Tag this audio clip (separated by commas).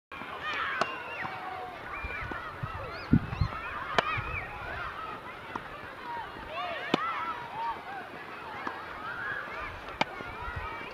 playing tennis